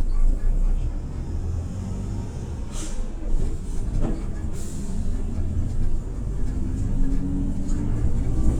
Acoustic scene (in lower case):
bus